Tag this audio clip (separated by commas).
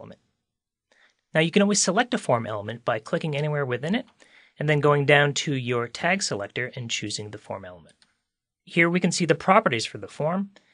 Speech